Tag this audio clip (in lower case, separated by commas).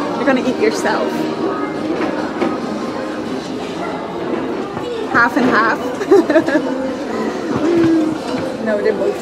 music, speech